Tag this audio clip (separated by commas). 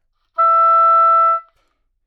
Musical instrument, Wind instrument, Music